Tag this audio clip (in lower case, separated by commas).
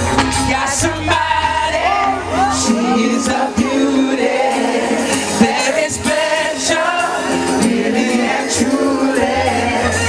male singing, music